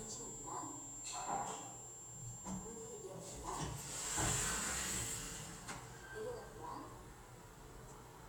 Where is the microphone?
in an elevator